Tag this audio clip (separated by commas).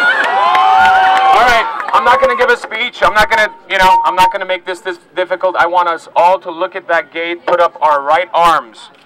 Speech